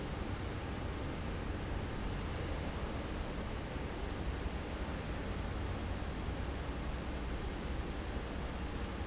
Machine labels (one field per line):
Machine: fan